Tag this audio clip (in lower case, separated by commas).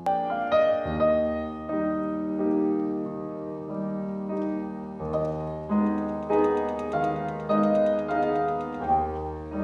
piano, classical music, music, musical instrument, keyboard (musical)